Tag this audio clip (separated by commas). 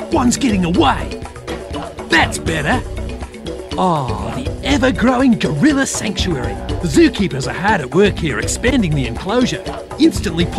Music, Speech